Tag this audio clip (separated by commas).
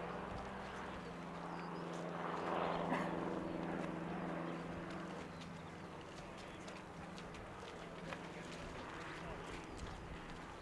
Speech